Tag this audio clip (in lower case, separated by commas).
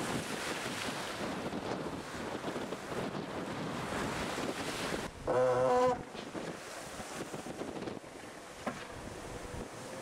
ocean, speedboat, wind noise (microphone), surf, water vehicle, wind